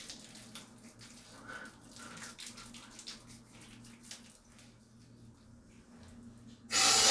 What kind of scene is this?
restroom